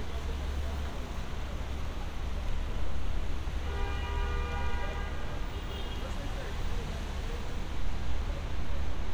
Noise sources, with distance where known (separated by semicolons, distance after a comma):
engine of unclear size; car horn; person or small group talking, far